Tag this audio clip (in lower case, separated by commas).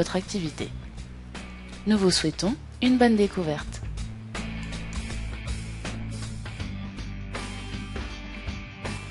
music, speech